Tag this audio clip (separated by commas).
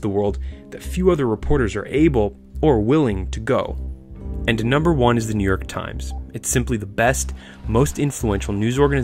Music, Speech